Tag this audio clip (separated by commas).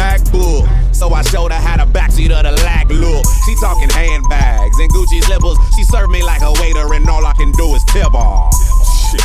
Soundtrack music, Music